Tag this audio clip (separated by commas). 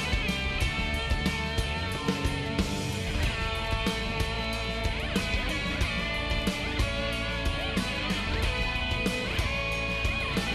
Music